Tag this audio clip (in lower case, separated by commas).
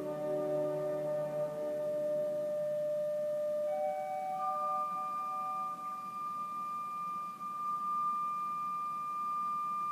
keyboard (musical), music, musical instrument